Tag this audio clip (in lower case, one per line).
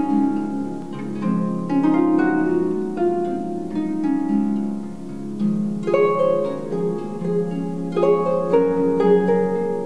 playing harp
harp
plucked string instrument
musical instrument
music